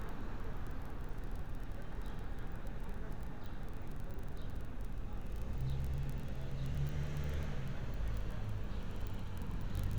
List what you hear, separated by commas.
medium-sounding engine